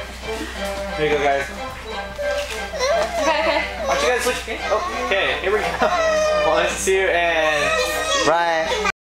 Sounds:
Speech, Music

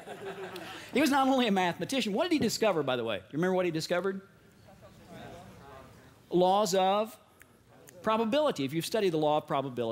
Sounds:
Speech

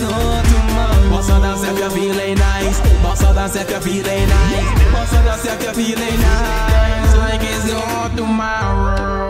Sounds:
Music, Dance music

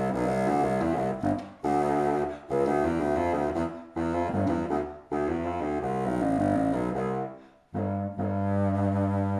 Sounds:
playing bassoon

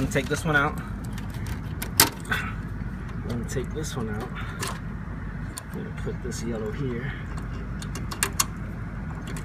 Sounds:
Speech

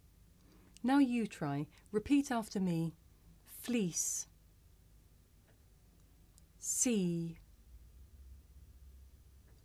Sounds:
Speech

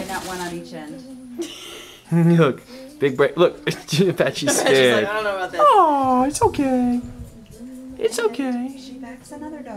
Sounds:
Speech

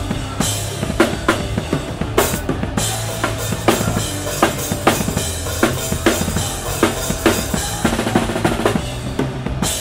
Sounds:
Music

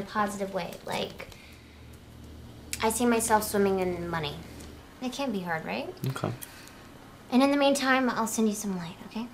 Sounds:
Speech

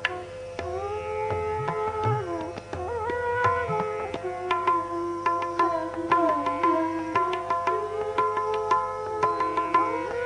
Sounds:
Music

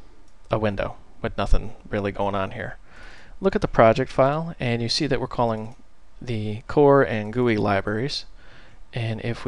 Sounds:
Speech

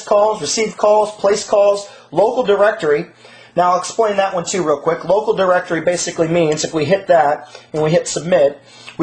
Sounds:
Speech

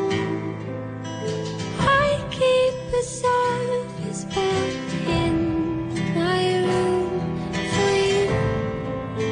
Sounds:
Music

